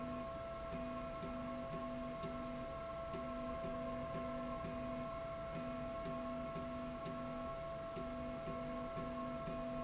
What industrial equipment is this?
slide rail